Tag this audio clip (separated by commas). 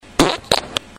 Fart